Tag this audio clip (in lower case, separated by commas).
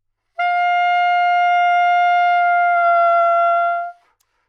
wind instrument, music, musical instrument